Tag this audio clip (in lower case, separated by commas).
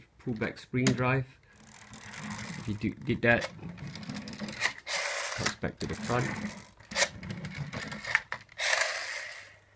speech